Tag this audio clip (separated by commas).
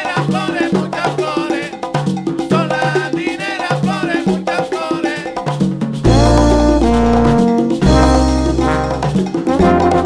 Singing, Percussion, Drum, Drum kit, Music, Musical instrument